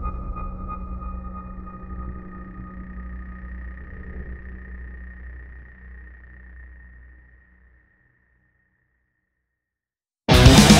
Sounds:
music

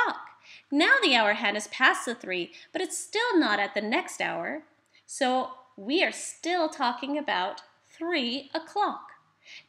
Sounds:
speech

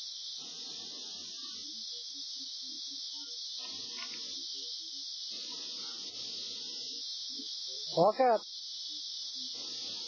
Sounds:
speech

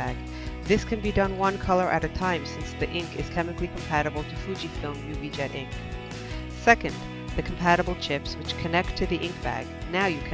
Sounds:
music, speech

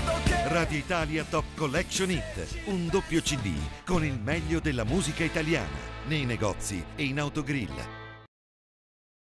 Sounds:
speech, music

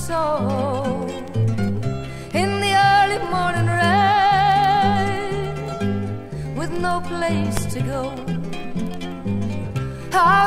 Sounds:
music

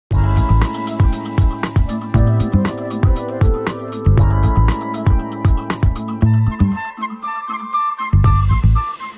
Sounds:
flute, speech, music

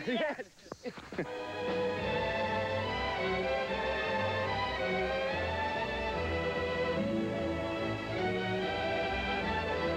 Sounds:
music, speech

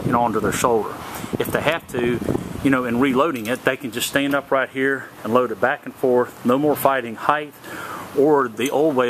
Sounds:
speech

